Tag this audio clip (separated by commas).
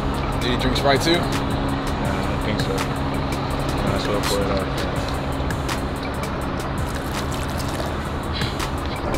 Speech, Music